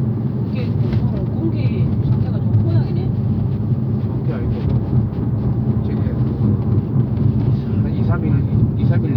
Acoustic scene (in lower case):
car